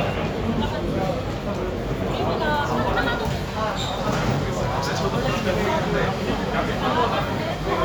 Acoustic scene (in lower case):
crowded indoor space